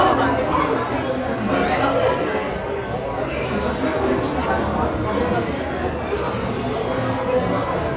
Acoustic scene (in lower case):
crowded indoor space